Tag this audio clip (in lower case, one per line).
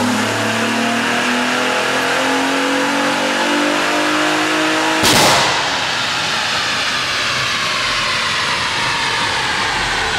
vehicle
medium engine (mid frequency)
car